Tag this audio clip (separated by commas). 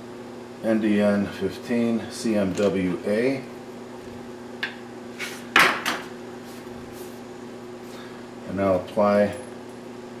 Speech